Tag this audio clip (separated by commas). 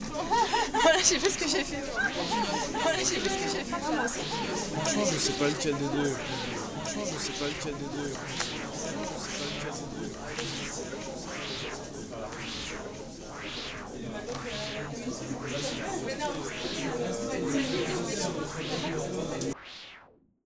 Conversation, Human voice, Speech